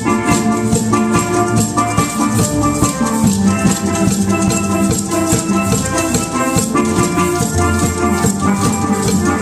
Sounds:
Orchestra, Music, Steelpan, Maraca, Musical instrument

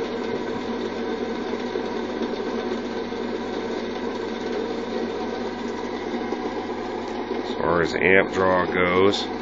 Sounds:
inside a small room, Speech

